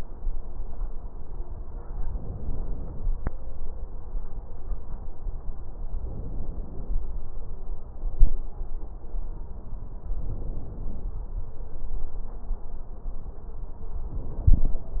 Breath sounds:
2.03-3.07 s: inhalation
5.99-7.03 s: inhalation
10.20-11.17 s: inhalation
14.11-15.00 s: inhalation

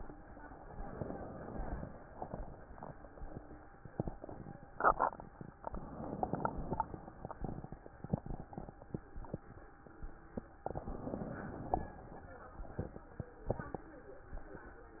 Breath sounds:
0.87-1.96 s: inhalation
5.71-6.79 s: inhalation
10.70-11.96 s: inhalation

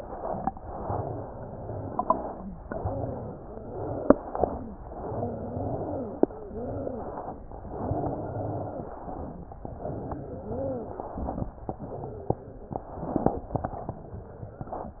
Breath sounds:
0.00-0.49 s: inhalation
0.00-1.94 s: wheeze
0.56-1.94 s: exhalation
1.97-2.60 s: inhalation
1.99-3.71 s: wheeze
2.60-3.71 s: exhalation
3.72-4.50 s: inhalation
3.72-6.16 s: wheeze
4.81-6.20 s: exhalation
6.25-9.04 s: wheeze
6.29-7.51 s: inhalation
7.62-9.02 s: exhalation
9.08-9.67 s: inhalation
9.08-11.47 s: wheeze
9.67-11.50 s: exhalation
11.51-12.84 s: inhalation
11.53-14.72 s: wheeze
12.92-14.72 s: exhalation

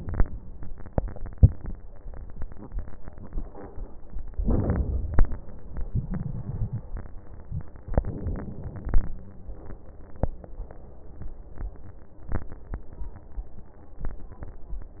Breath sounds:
4.41-5.24 s: inhalation
5.88-6.81 s: exhalation
5.88-6.81 s: crackles
7.89-9.11 s: inhalation
7.89-9.11 s: crackles

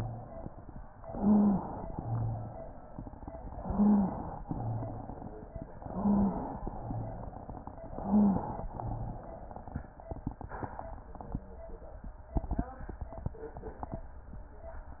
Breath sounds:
0.98-1.81 s: inhalation
1.10-1.61 s: stridor
1.87-2.65 s: rhonchi
1.87-3.53 s: exhalation
3.57-4.40 s: inhalation
3.63-4.14 s: stridor
4.42-5.14 s: rhonchi
4.42-5.72 s: exhalation
5.76-6.59 s: inhalation
5.88-6.39 s: stridor
6.61-7.89 s: exhalation
6.75-7.35 s: rhonchi
7.93-8.65 s: inhalation
7.99-8.49 s: stridor
8.71-9.32 s: rhonchi
8.71-9.90 s: exhalation

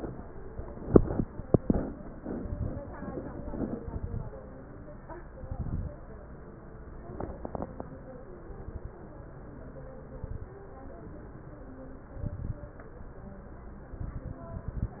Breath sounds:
2.37-2.98 s: exhalation
2.37-2.98 s: crackles
3.76-4.37 s: exhalation
3.76-4.37 s: crackles
5.30-5.91 s: exhalation
5.30-5.91 s: crackles
8.38-8.99 s: exhalation
8.38-8.99 s: crackles
10.13-10.60 s: exhalation
10.13-10.60 s: crackles
12.16-12.77 s: exhalation
12.16-12.77 s: crackles
13.97-15.00 s: exhalation
13.97-15.00 s: crackles

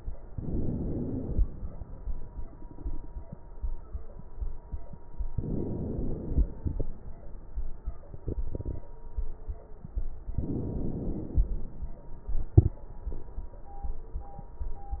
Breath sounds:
0.26-1.41 s: inhalation
5.31-6.46 s: inhalation
10.36-11.51 s: inhalation

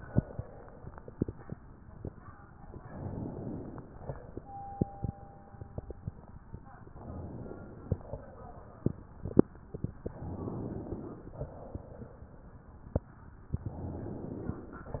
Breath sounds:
2.77-4.14 s: inhalation
6.93-7.99 s: inhalation
7.99-9.07 s: exhalation
10.21-11.39 s: inhalation
11.39-12.86 s: exhalation
13.64-14.87 s: inhalation

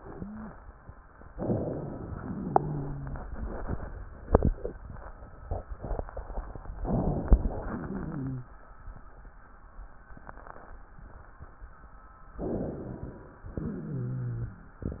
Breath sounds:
1.33-2.17 s: inhalation
2.17-3.25 s: exhalation
2.17-3.25 s: wheeze
6.79-7.55 s: inhalation
7.55-8.52 s: exhalation
7.55-8.52 s: wheeze
12.39-13.36 s: inhalation
13.60-14.82 s: exhalation
13.60-14.82 s: wheeze

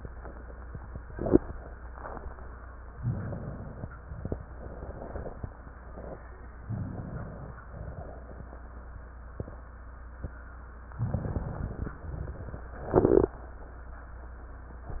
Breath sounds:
2.96-3.89 s: inhalation
4.06-4.48 s: exhalation
6.66-7.59 s: inhalation
7.78-8.37 s: exhalation
11.01-11.94 s: inhalation
12.07-12.66 s: exhalation

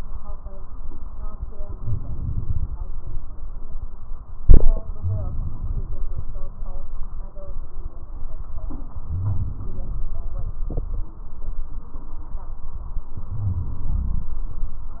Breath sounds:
1.77-2.72 s: inhalation
5.01-5.95 s: inhalation
9.07-9.99 s: inhalation
13.31-14.31 s: inhalation

